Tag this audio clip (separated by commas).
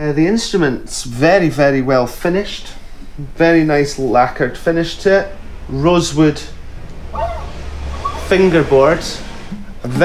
Speech